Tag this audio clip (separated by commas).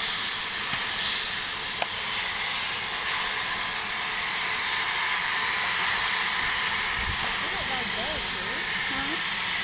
Speech